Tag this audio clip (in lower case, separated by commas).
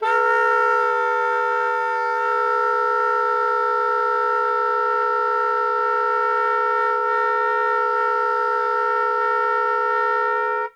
woodwind instrument, music, musical instrument